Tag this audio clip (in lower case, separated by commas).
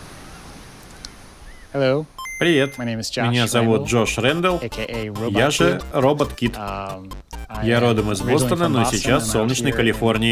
music, speech